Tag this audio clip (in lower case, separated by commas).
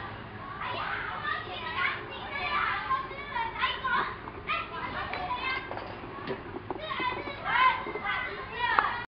speech